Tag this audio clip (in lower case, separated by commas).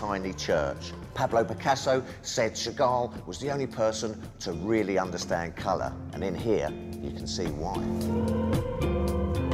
music, speech